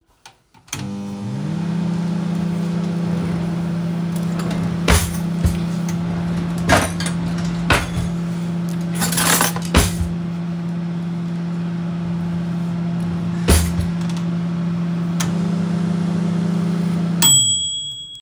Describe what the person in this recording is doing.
I started the microwave and then opened and closed a kitchen drawer while standing nearby.